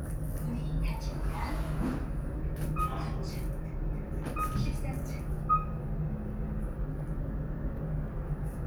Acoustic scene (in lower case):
elevator